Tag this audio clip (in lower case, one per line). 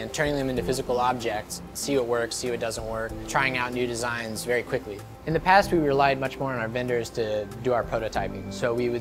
music
speech